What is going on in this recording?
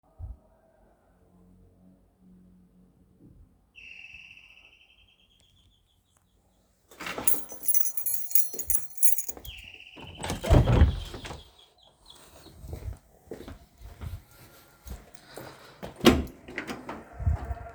The bell rang so I took my keys and went to open the room door. Then I walked to the apartment door and opened it.